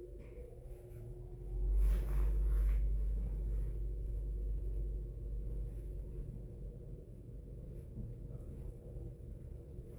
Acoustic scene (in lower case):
elevator